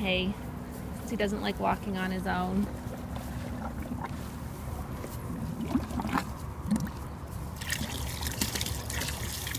An woman explain while letting gurgle sound ring aloud